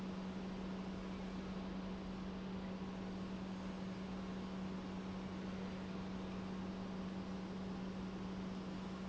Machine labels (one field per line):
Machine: pump